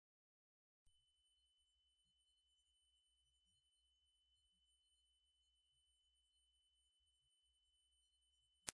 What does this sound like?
A beep is heard